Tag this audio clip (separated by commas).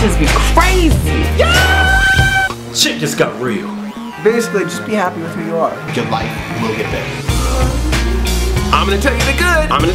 Music, Speech